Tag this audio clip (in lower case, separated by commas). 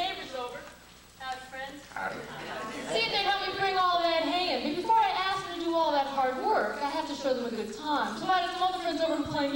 speech